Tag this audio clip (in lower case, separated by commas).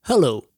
human voice, man speaking, speech